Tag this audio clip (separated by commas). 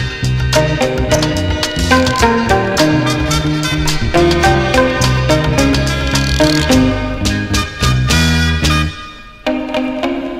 Musical instrument, Guitar, Music, Plucked string instrument